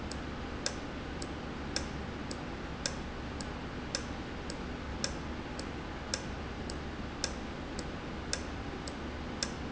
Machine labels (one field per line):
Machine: valve